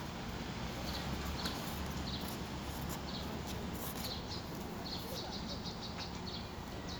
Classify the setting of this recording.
residential area